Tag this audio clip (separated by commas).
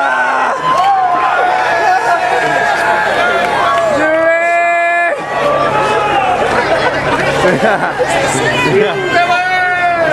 Speech